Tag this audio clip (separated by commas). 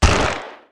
Explosion, gunfire